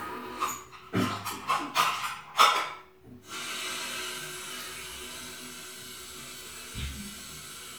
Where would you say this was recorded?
in a restroom